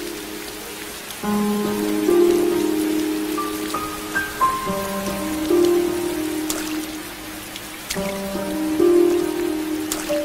A piano playing as rain falls on a surface